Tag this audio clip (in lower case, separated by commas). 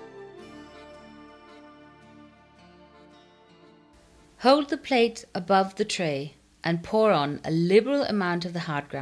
speech, music